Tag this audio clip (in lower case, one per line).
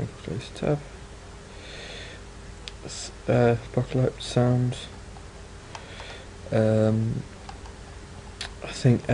speech